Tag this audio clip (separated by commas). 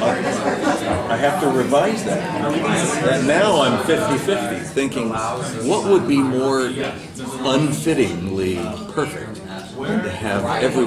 Speech